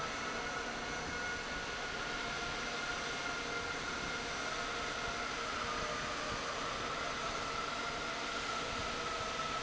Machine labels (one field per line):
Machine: fan